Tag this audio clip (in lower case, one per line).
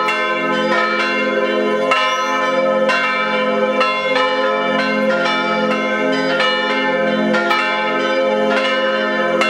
bell
church bell ringing
church bell